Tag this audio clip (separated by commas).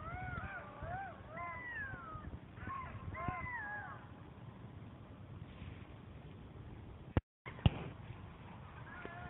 coyote howling